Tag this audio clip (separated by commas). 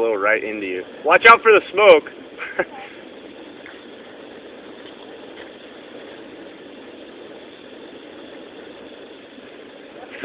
Speech